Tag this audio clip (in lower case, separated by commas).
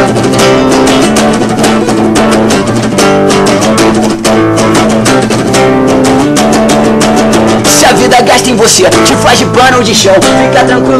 music